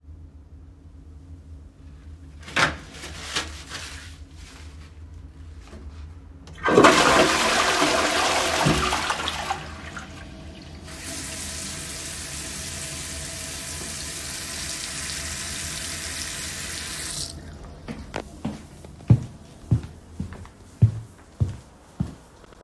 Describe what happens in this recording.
I first ripped of some toilet paper. Then flushed the toilet and let some water run. Afterwards I went away and you can hear steps.